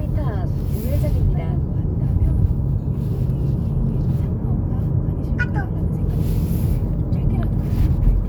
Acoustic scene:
car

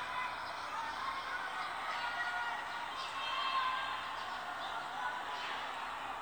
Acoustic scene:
residential area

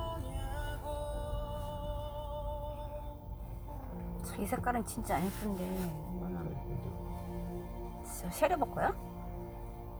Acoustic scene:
car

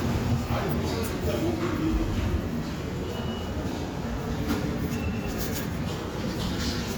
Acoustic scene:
subway station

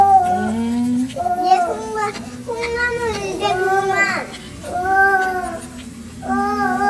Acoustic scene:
restaurant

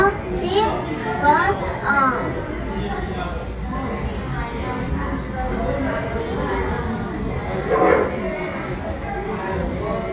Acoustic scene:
crowded indoor space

